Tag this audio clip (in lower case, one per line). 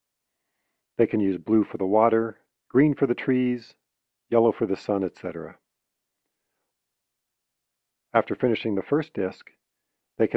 speech